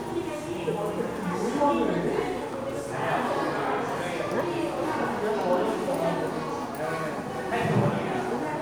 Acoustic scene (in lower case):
crowded indoor space